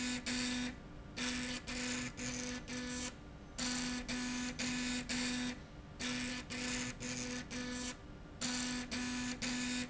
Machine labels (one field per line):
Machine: slide rail